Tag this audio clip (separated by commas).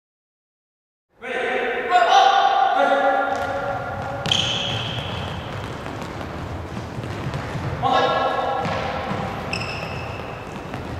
playing badminton